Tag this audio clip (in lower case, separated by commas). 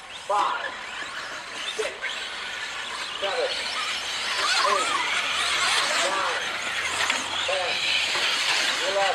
speech